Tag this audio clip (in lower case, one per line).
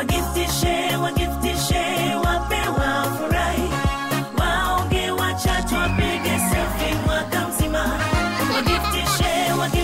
techno
music